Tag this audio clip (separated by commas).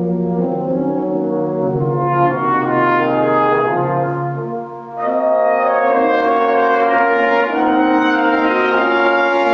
French horn, playing french horn, Music